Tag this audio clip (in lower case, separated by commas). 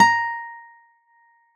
guitar, musical instrument, music, plucked string instrument, acoustic guitar